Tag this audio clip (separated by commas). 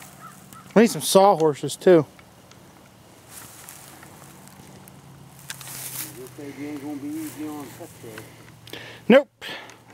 Speech